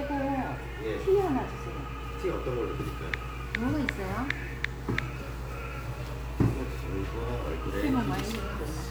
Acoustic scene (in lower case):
restaurant